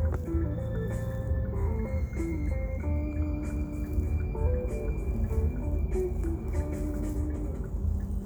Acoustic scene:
car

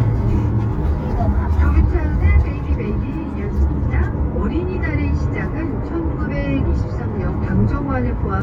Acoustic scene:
car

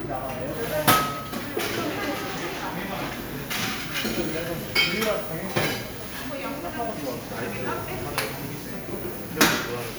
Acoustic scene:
cafe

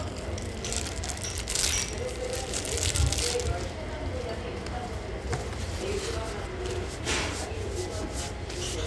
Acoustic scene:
restaurant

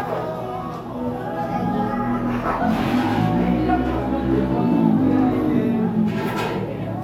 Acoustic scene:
cafe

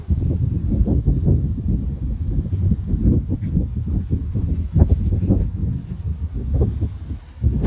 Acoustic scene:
residential area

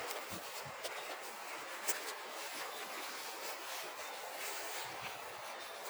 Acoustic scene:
residential area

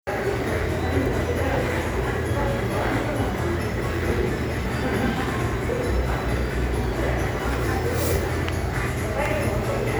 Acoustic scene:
crowded indoor space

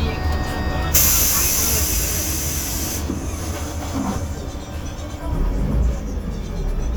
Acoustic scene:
bus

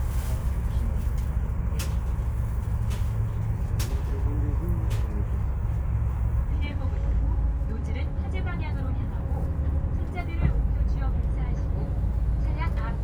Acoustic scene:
bus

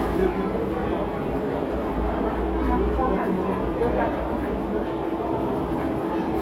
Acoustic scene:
crowded indoor space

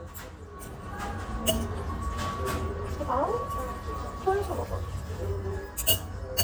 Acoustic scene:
restaurant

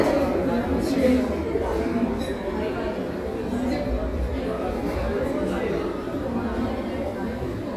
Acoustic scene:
crowded indoor space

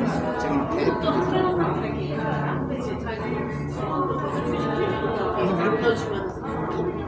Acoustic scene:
cafe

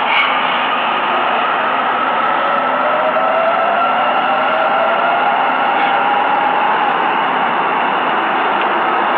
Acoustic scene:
subway station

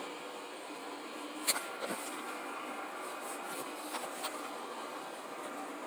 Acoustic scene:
subway train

